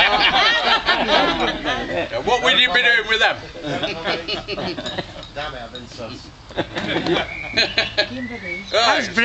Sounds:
male speech, speech

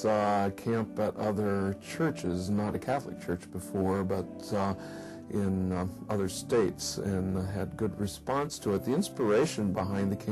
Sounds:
speech, music

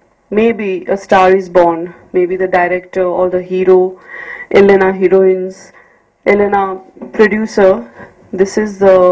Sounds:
speech, narration, woman speaking

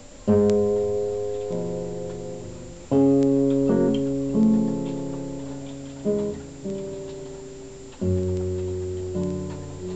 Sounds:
guitar, music, plucked string instrument, musical instrument

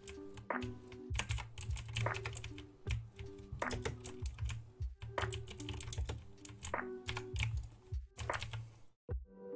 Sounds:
mouse clicking

